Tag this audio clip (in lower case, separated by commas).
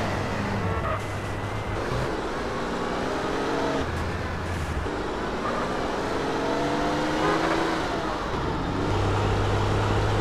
vehicle, car, motor vehicle (road)